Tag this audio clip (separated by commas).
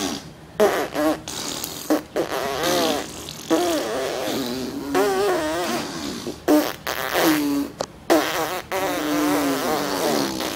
Fart